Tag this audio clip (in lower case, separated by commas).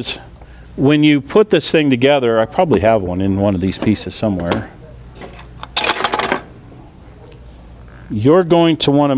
inside a large room or hall, speech